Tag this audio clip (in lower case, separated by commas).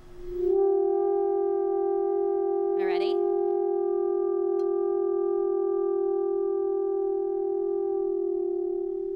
speech